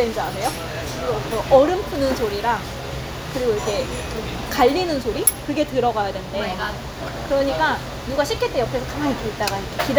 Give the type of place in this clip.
restaurant